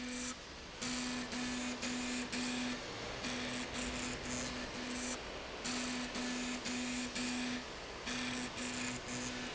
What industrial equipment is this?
slide rail